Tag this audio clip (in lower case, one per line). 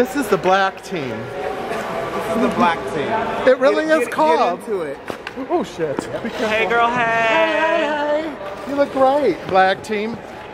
speech